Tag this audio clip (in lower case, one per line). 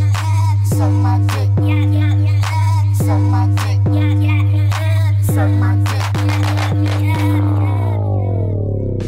music
hip hop music